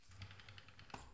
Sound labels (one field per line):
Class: window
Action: opening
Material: glass